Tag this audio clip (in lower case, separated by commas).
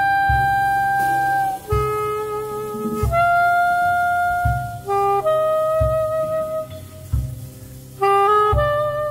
woodwind instrument, musical instrument, music